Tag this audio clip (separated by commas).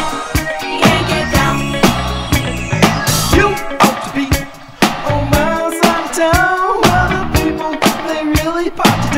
Funk, Music